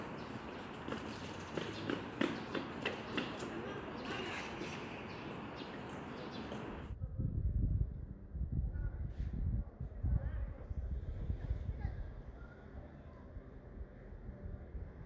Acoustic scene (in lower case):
residential area